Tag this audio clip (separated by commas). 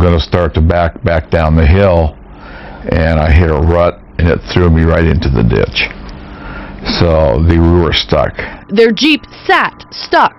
Speech